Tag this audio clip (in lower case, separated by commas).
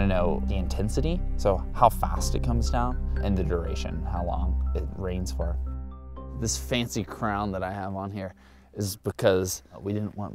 speech, music